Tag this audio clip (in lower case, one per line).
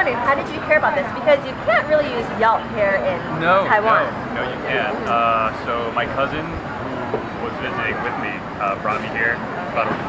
speech